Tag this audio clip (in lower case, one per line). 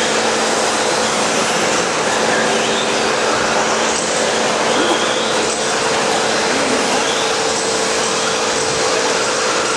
speech
vehicle